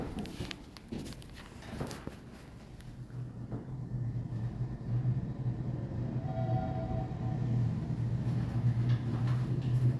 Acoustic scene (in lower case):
elevator